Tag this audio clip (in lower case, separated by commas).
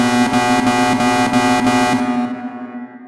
alarm